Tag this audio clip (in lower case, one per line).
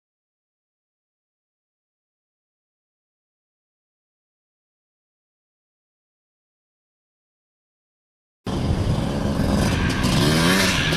vehicle
motorcycle